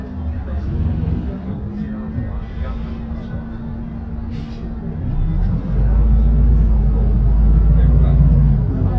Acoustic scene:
bus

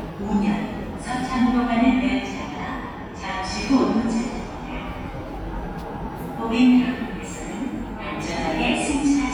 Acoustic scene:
subway station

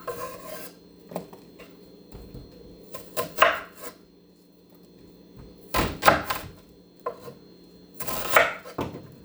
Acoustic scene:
kitchen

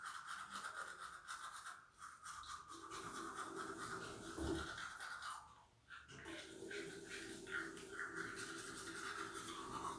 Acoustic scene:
restroom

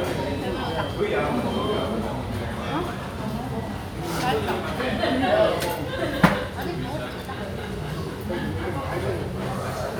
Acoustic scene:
restaurant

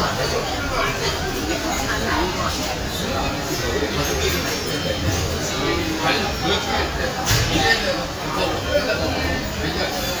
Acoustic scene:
crowded indoor space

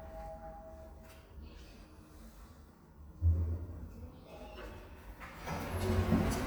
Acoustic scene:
elevator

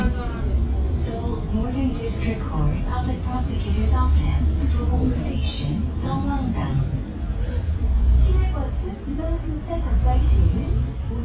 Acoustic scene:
bus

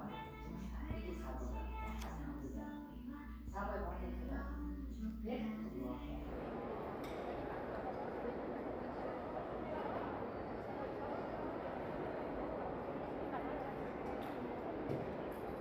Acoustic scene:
crowded indoor space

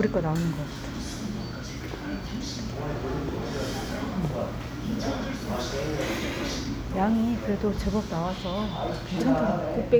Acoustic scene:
crowded indoor space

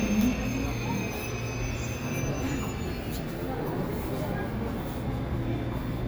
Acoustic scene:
subway station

